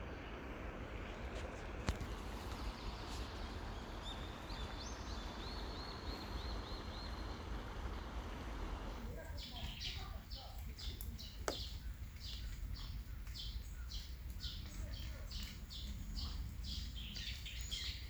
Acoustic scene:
park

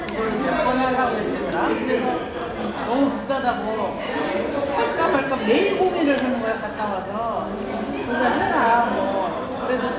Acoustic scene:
restaurant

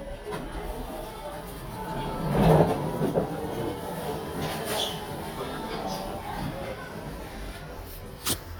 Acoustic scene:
elevator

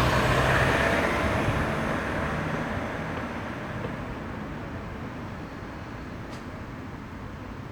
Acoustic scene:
street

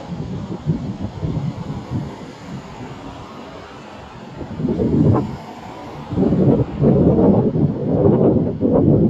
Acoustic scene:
street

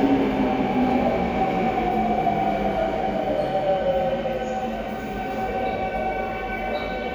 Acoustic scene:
subway station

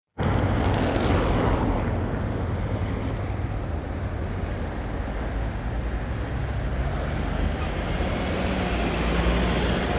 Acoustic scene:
street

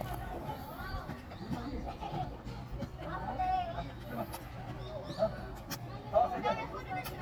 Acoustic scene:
park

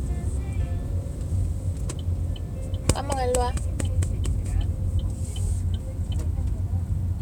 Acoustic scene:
car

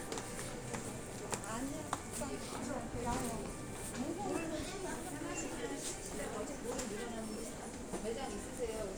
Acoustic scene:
crowded indoor space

